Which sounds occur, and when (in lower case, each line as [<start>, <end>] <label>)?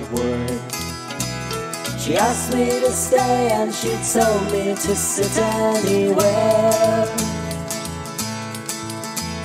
[0.00, 9.44] music
[0.09, 0.59] male singing
[1.99, 7.34] male singing